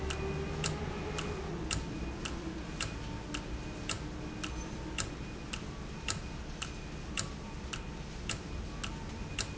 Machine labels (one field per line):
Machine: valve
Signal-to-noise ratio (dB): -6 dB